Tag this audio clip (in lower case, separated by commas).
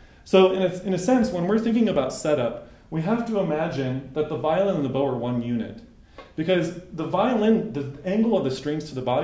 speech